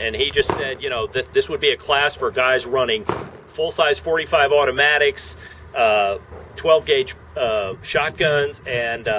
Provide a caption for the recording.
A man speaking continuously